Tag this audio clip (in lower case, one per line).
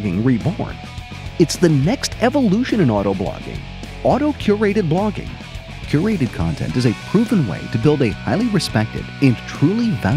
speech
music